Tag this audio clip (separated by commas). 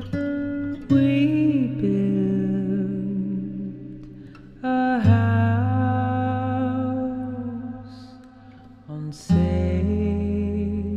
Music